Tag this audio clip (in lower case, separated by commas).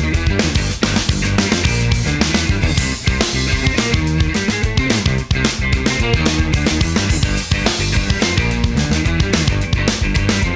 drum, percussion, rimshot, bass drum, snare drum, drum kit